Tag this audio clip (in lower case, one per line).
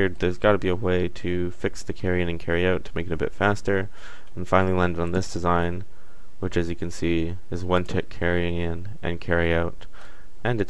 speech